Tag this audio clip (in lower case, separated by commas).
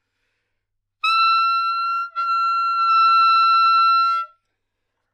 musical instrument, wind instrument, music